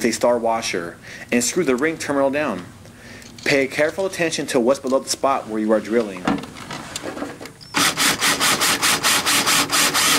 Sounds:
inside a small room, speech

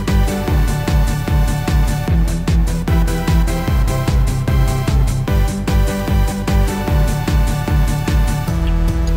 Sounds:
music, techno, electronic music

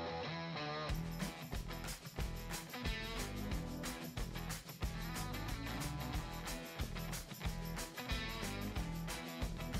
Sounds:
music

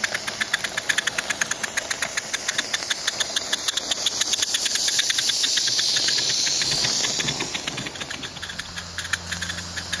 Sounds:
rail transport, train, vehicle

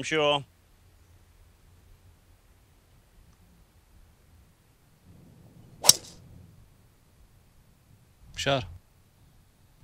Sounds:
golf driving

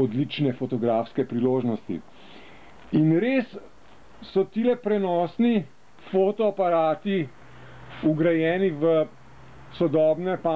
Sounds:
speech

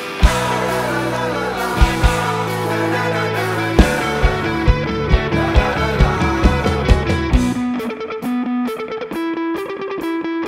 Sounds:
rhythm and blues, blues, music

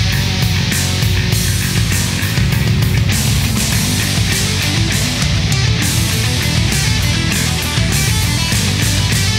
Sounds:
grunge, music

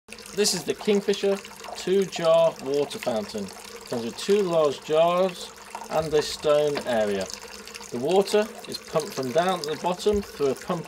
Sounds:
inside a small room, speech, liquid

